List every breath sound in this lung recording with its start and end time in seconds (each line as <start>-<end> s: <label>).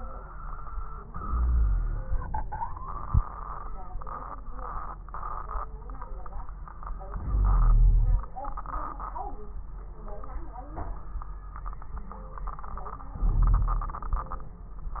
1.10-2.40 s: inhalation
1.24-2.15 s: wheeze
2.42-3.34 s: exhalation
2.42-3.34 s: crackles
7.12-8.27 s: inhalation
7.27-8.27 s: wheeze
13.18-14.01 s: inhalation
13.18-14.01 s: wheeze